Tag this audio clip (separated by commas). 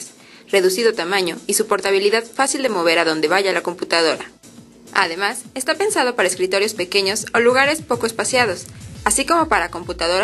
Speech, Music